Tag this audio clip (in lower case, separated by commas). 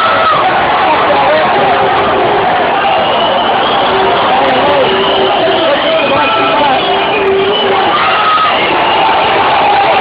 speech